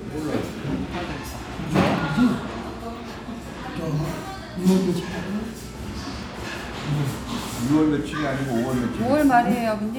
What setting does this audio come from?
restaurant